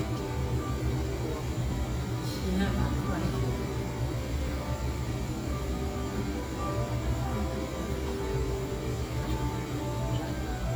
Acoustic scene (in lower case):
cafe